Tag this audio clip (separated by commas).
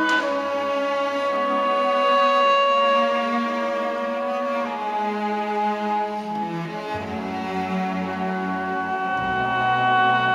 Music, Musical instrument, Soul music